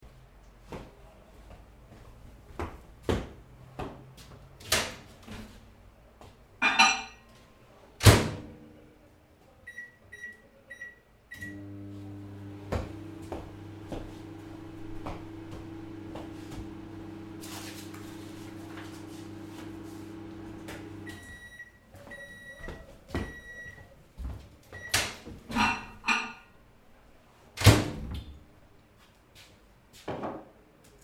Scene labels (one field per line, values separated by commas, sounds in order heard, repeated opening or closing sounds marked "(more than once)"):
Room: kitchen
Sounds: footsteps, microwave, cutlery and dishes